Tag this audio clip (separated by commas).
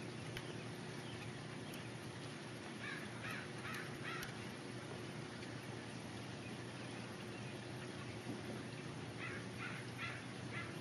Animal